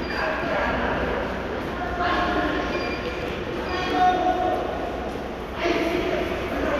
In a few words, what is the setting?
subway station